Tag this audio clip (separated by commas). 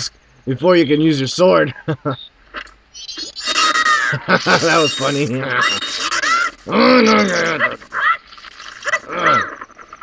Speech